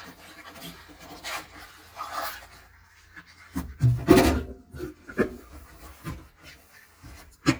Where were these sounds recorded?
in a kitchen